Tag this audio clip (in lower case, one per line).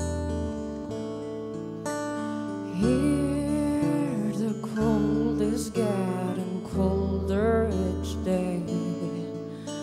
music
lullaby